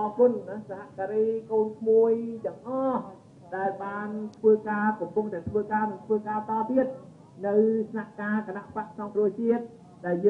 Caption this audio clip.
Man giving a speech